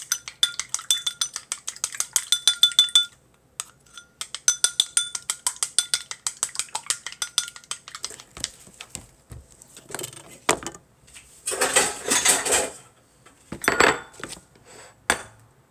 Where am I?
in a kitchen